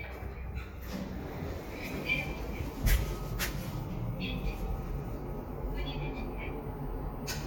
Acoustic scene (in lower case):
elevator